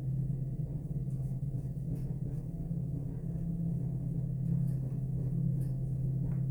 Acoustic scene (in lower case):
elevator